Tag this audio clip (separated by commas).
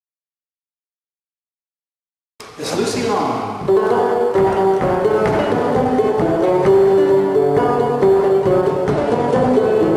Banjo, Musical instrument, Music, Speech